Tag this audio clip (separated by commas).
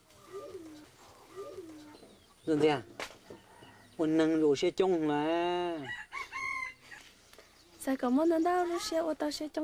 cock-a-doodle-doo, Chicken, Fowl